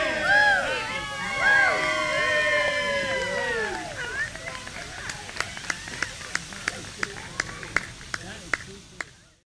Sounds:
Speech

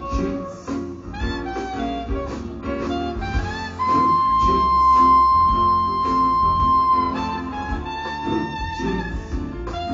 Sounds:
inside a large room or hall, Music, inside a public space

